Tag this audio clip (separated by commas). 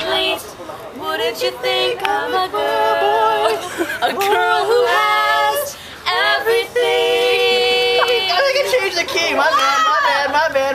Speech